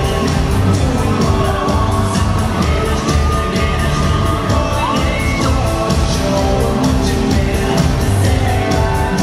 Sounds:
music
singing

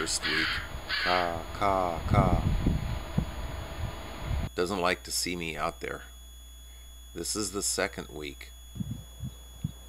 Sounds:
speech
animal
crow

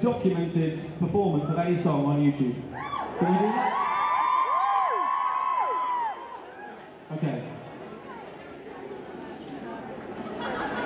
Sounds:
speech

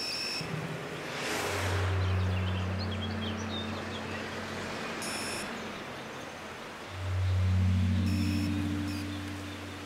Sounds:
vehicle

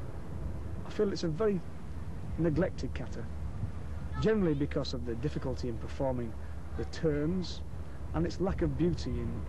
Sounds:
speech

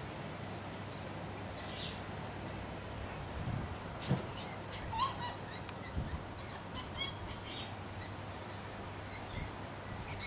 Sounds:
magpie calling

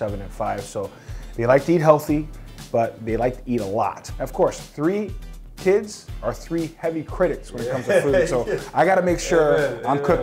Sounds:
music
speech

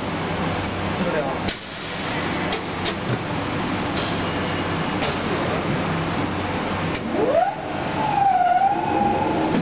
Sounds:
speech

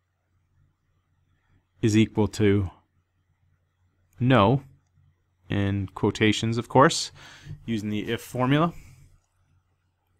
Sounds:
speech

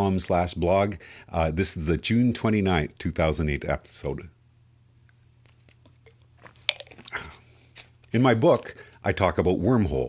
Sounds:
speech

